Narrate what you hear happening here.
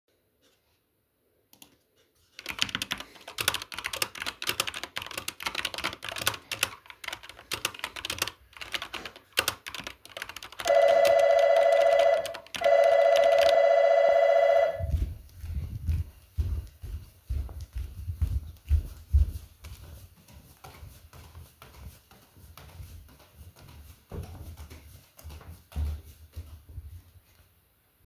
I was typing on my keyboard, when the bell rang twice. After that i went down to the living_room.